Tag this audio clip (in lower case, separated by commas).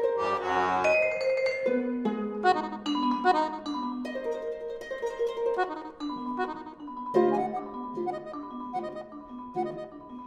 playing vibraphone